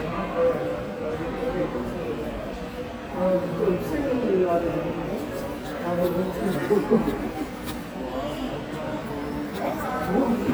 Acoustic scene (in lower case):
subway station